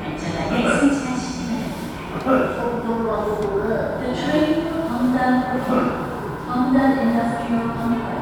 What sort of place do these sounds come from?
subway station